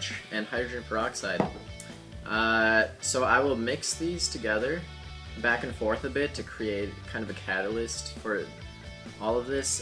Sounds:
speech, music

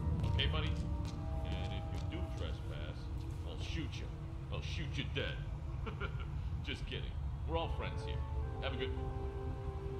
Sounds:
speech

